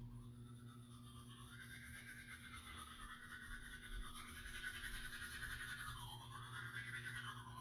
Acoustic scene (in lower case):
restroom